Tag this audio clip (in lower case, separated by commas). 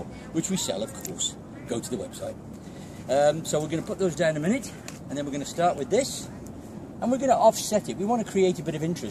speech